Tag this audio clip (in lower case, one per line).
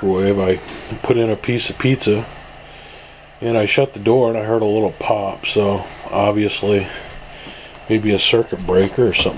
speech